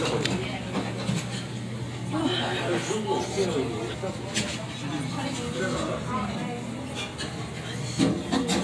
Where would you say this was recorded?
in a crowded indoor space